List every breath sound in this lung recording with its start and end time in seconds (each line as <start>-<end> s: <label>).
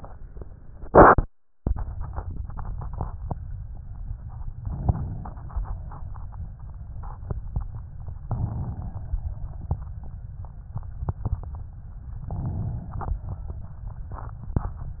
4.51-5.52 s: inhalation
5.53-6.58 s: exhalation
7.95-9.16 s: inhalation
11.98-13.19 s: inhalation